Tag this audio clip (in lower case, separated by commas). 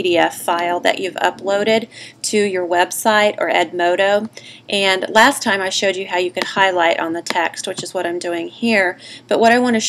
speech